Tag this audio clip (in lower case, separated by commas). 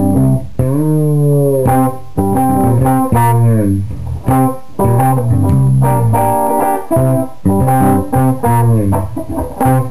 music, musical instrument, plucked string instrument, guitar